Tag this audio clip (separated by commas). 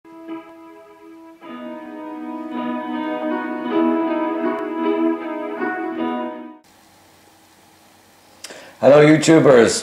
Speech, Classical music, inside a small room, Music